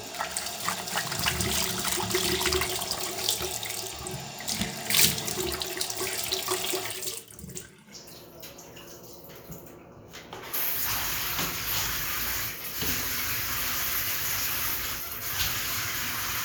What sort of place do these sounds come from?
restroom